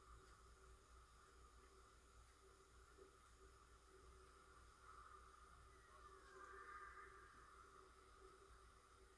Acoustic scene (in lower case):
residential area